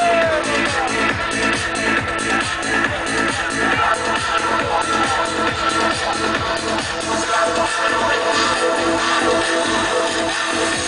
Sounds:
Music

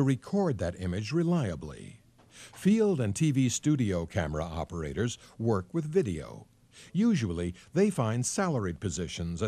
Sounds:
Speech

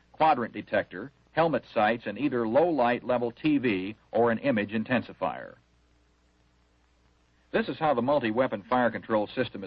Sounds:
Speech

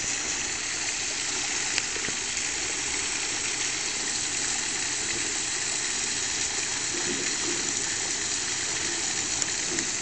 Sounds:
Water, Animal

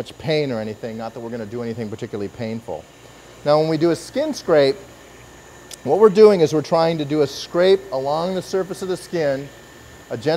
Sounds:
Speech

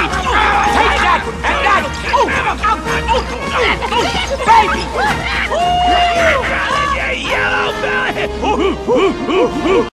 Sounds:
Music, Speech

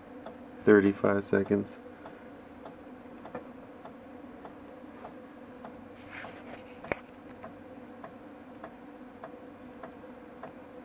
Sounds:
Speech

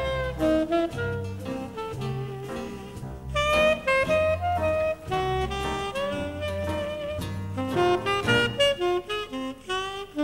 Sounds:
Music

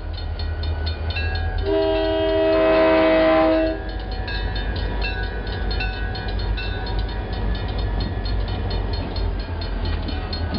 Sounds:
Vehicle, train wagon, outside, urban or man-made, Train

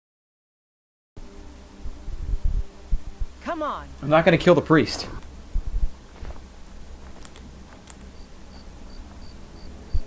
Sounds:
Speech

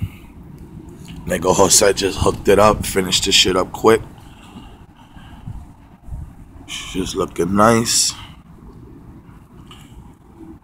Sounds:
Speech, inside a small room

